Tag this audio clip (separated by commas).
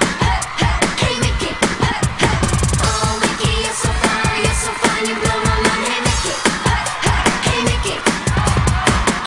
Pop music, Folk music, Happy music, Music